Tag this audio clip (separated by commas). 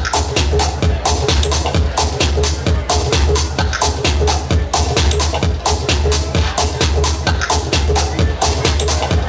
Electronic music, Music, Speech, Techno